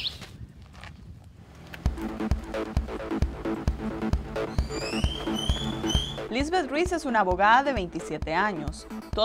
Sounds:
Speech, outside, rural or natural, Music

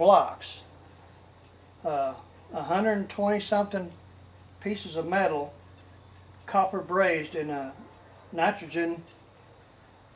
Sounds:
Speech

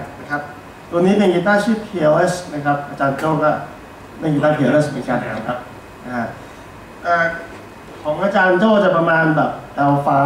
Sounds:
Speech

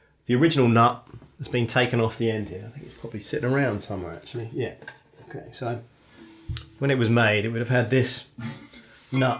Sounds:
Speech

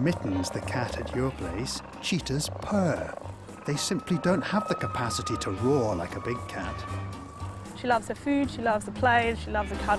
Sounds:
cheetah chirrup

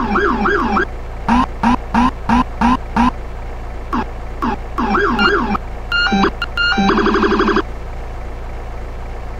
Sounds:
Vehicle, Siren

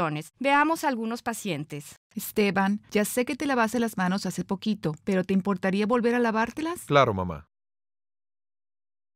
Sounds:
Speech

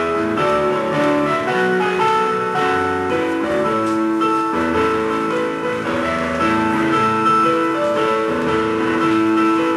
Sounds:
Music

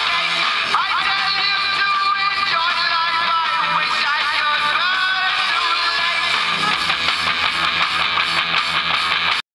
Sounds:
Music

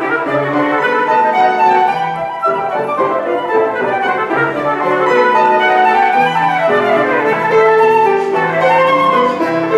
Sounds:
Musical instrument, Violin, Music

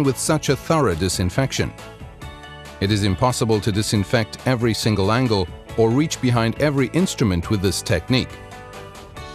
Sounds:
Music, Speech

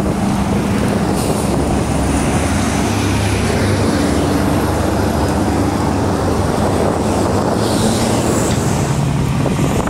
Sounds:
Wind, Wind noise (microphone), Fire

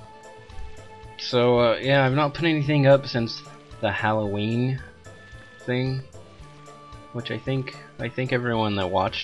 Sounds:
Music, Speech

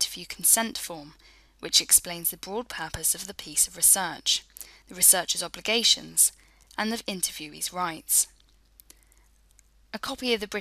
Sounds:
Speech

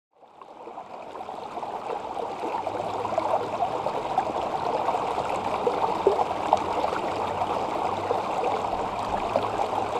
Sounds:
stream burbling

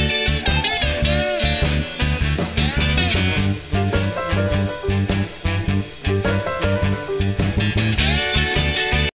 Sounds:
Electric guitar, Strum, Guitar, playing electric guitar, Plucked string instrument, Musical instrument, Music

